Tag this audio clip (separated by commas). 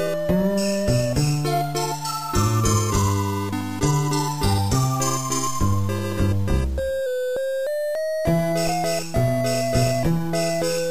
Music, Video game music